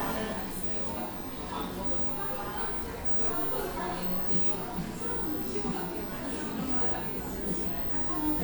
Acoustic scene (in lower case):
cafe